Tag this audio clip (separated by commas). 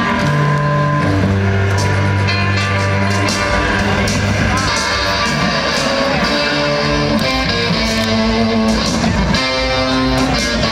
Music, Speech